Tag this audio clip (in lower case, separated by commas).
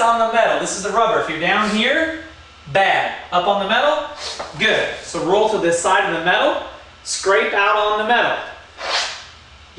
speech